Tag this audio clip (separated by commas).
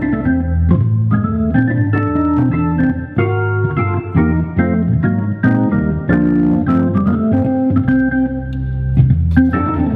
Keyboard (musical), Musical instrument, playing hammond organ, Piano, Music, Hammond organ, Organ